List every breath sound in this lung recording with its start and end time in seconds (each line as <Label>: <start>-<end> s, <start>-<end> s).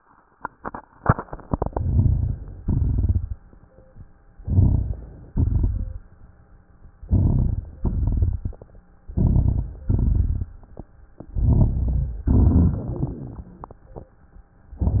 Inhalation: 1.65-2.61 s, 4.38-5.28 s, 7.01-7.81 s, 9.09-9.87 s, 11.21-12.23 s, 14.78-15.00 s
Exhalation: 2.62-3.38 s, 5.31-6.09 s, 7.83-8.76 s, 9.92-10.70 s, 12.24-13.78 s
Crackles: 1.65-2.61 s, 2.62-3.38 s, 4.38-5.28 s, 5.31-6.09 s, 7.01-7.81 s, 7.83-8.76 s, 9.09-9.87 s, 9.92-10.70 s, 11.21-12.23 s, 12.24-13.78 s, 14.78-15.00 s